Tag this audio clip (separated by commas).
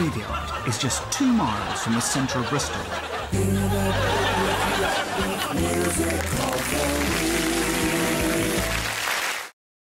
Speech, Music